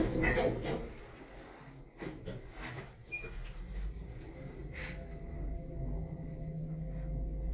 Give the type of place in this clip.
elevator